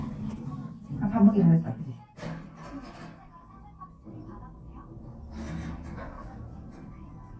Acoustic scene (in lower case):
elevator